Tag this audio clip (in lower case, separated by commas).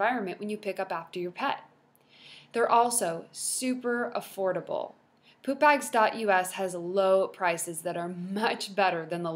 speech